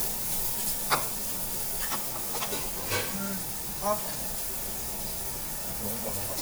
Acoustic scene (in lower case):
restaurant